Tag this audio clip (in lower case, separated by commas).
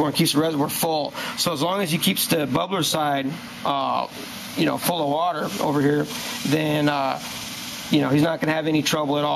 outside, urban or man-made, speech